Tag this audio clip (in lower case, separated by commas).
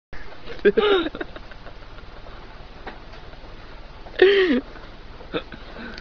speech